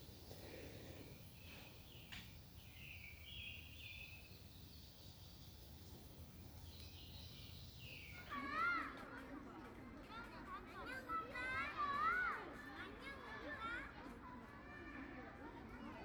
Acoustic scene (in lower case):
park